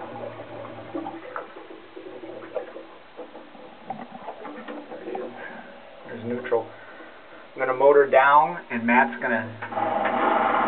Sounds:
speech

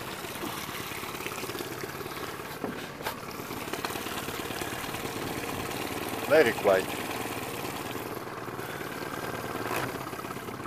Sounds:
boat
motorboat

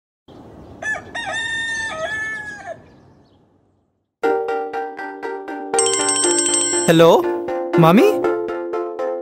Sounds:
speech
fowl
music
outside, rural or natural

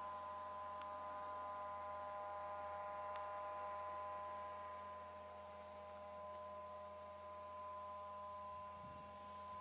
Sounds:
pulse

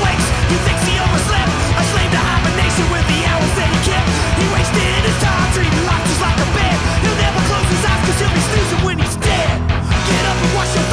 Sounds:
music

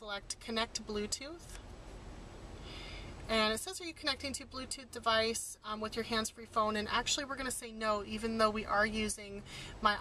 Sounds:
speech

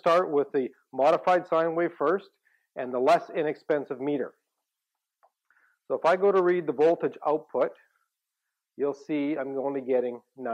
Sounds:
speech

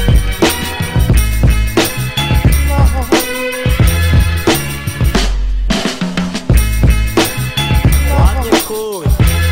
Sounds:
speech
music

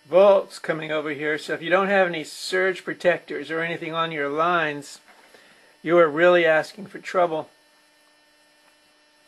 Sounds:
speech

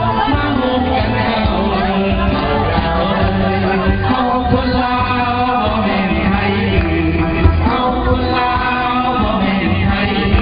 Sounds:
music

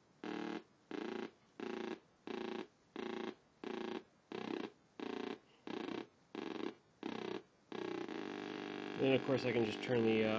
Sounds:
speech

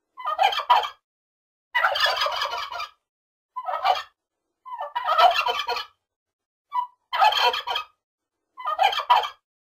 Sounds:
fowl
turkey
gobble

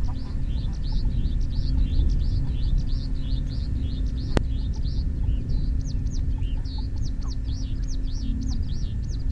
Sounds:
goose honking

